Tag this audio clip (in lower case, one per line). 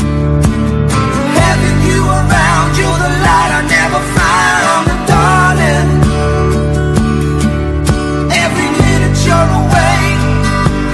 music